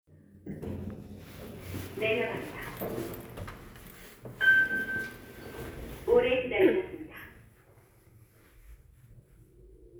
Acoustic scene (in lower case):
elevator